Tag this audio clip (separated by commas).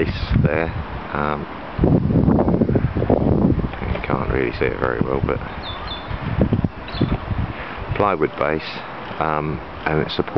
Speech